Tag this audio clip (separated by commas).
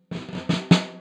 Percussion, Musical instrument, Snare drum, Music, Drum